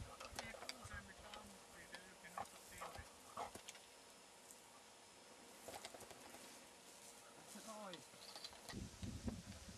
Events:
[0.00, 0.88] dog
[0.00, 1.42] man speaking
[0.00, 9.75] wind
[0.12, 0.69] wind noise (microphone)
[1.26, 1.37] tick
[1.71, 3.02] man speaking
[1.86, 1.98] tick
[2.30, 2.48] dog
[2.33, 2.62] generic impact sounds
[2.72, 3.01] dog
[2.82, 3.06] generic impact sounds
[3.32, 3.55] dog
[3.52, 3.82] generic impact sounds
[4.41, 4.61] generic impact sounds
[5.61, 6.63] generic impact sounds
[6.26, 6.66] surface contact
[6.85, 7.24] surface contact
[7.40, 7.79] surface contact
[7.50, 7.93] man speaking
[7.86, 7.98] tick
[8.14, 8.74] generic impact sounds
[8.68, 9.75] wind noise (microphone)

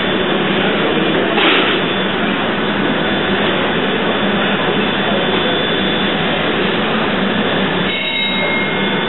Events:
[0.00, 9.05] engine
[0.00, 9.05] speech noise
[7.60, 9.05] alarm

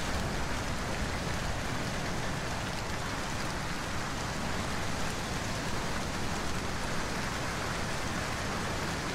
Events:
[0.00, 9.14] rain on surface

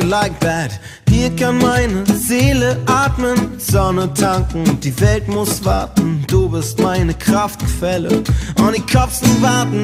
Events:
[0.00, 0.74] male singing
[0.00, 9.83] music
[0.75, 1.00] breathing
[1.04, 3.44] male singing
[3.60, 8.24] male singing
[8.28, 8.54] breathing
[8.54, 9.83] male singing

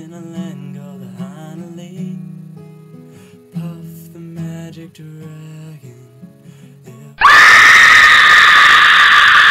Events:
[0.00, 2.14] male singing
[0.01, 7.17] music
[3.03, 3.34] gasp
[3.48, 6.31] male singing
[6.34, 6.78] gasp
[6.82, 7.17] male singing
[7.16, 9.50] screaming

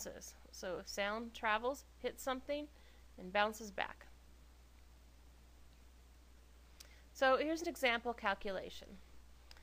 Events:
[0.00, 2.67] female speech
[0.00, 9.62] background noise
[2.80, 3.13] breathing
[3.17, 3.99] female speech
[4.03, 4.10] clicking
[6.82, 6.89] clicking
[6.90, 7.12] breathing
[7.22, 8.89] female speech
[8.85, 8.92] clicking
[8.95, 9.26] breathing
[9.57, 9.62] clicking

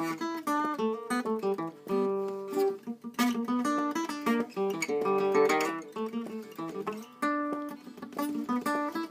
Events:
[0.00, 9.10] background noise
[0.00, 9.10] music

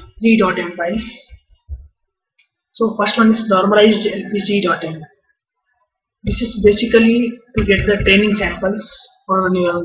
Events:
[0.00, 1.35] speech
[0.00, 9.84] background noise
[2.36, 2.47] tick
[2.71, 5.11] speech
[6.23, 6.40] generic impact sounds
[6.23, 9.84] speech
[7.55, 8.01] generic impact sounds

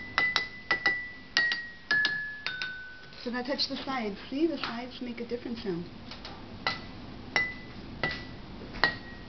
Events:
[0.00, 3.21] music
[0.00, 9.25] mechanisms
[0.13, 0.21] clink
[0.32, 0.39] clink
[0.69, 0.73] clink
[0.83, 0.88] clink
[1.33, 1.54] clink
[1.87, 1.91] clink
[2.02, 2.07] clink
[2.42, 2.46] clink
[2.58, 2.64] clink
[3.02, 3.30] generic impact sounds
[3.21, 4.15] woman speaking
[3.70, 3.86] surface contact
[4.09, 4.28] surface contact
[4.30, 5.87] woman speaking
[4.55, 4.68] generic impact sounds
[4.90, 5.00] generic impact sounds
[5.53, 5.65] generic impact sounds
[6.07, 6.12] generic impact sounds
[6.22, 6.30] generic impact sounds
[6.65, 6.81] glass
[7.32, 7.72] clink
[7.50, 7.73] surface contact
[8.00, 8.34] clink
[8.57, 8.65] tap
[8.79, 9.19] clink

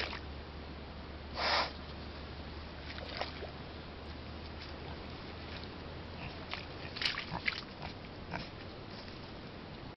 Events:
[0.03, 9.83] pig
[6.44, 8.41] water

